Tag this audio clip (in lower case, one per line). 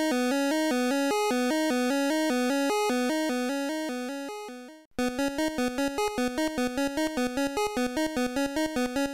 music